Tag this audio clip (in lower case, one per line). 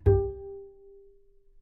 music
musical instrument
bowed string instrument